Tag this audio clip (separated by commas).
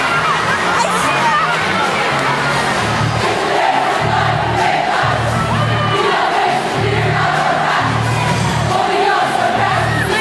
people cheering